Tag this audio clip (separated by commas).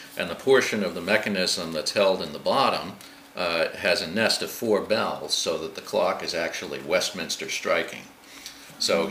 Speech